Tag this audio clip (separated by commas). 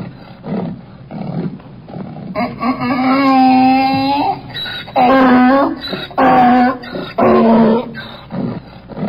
ass braying